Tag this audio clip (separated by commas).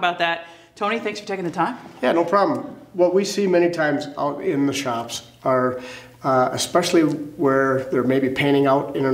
Speech